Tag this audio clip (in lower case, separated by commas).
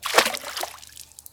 splash, water, liquid